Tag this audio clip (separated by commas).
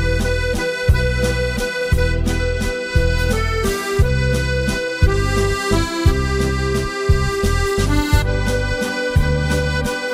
playing accordion, Accordion